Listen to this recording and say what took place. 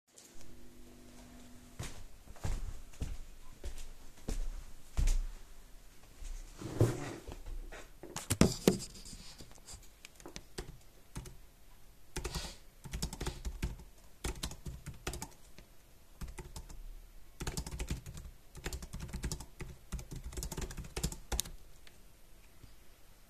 I walk, move the chair and sit on it, start typing